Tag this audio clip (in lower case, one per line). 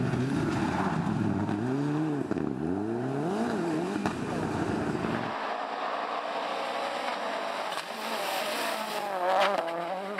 vehicle
revving
car